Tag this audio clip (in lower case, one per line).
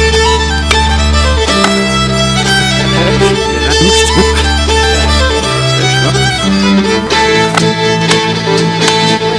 violin
bowed string instrument